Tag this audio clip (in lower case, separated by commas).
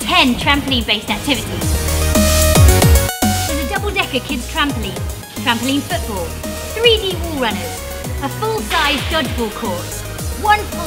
speech, music